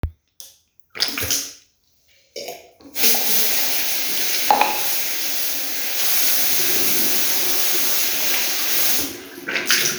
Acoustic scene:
restroom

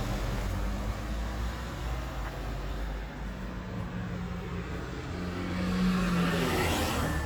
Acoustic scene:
street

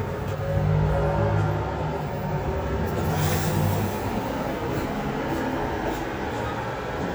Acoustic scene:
elevator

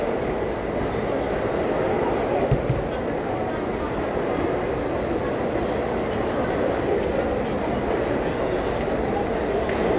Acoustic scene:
restaurant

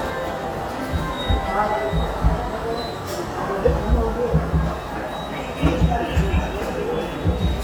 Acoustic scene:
subway station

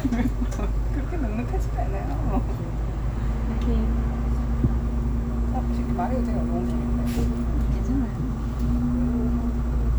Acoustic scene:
bus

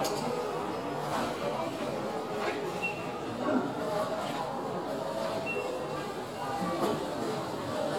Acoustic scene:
crowded indoor space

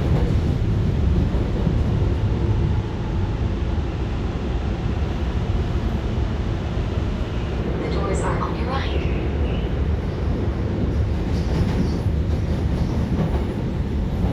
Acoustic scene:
subway train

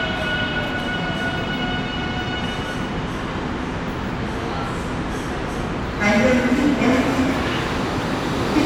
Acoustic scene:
subway station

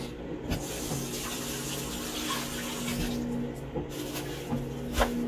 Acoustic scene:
kitchen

